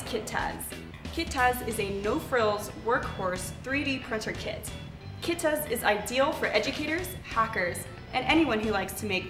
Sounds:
speech
music

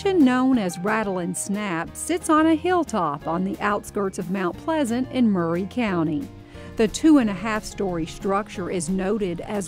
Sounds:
music
speech

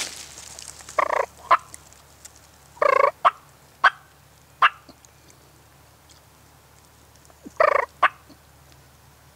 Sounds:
turkey
bird

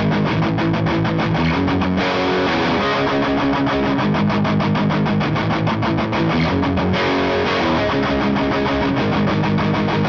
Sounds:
music

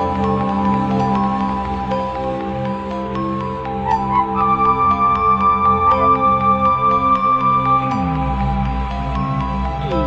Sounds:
music

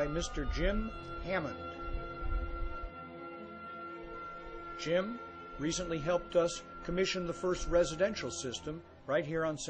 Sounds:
speech
music

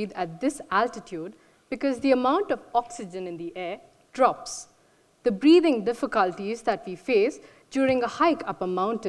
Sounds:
speech

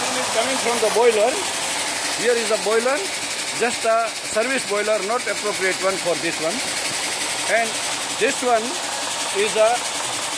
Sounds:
spraying water

